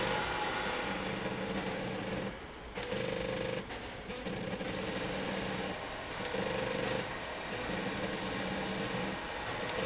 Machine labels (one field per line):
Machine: slide rail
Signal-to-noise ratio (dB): -6 dB